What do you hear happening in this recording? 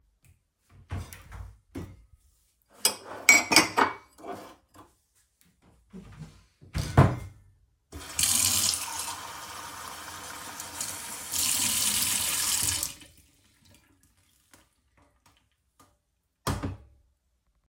I open a kitchen cabinet and take a cup from inside. After closing the cabinet, I pour water into the cup from the tap. Finally, I place the filled cup on the kitchen counter.